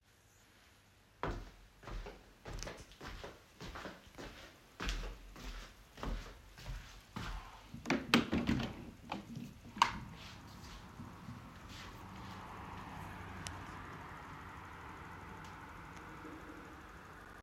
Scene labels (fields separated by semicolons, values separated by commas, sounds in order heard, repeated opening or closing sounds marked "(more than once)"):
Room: living room; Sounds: footsteps, window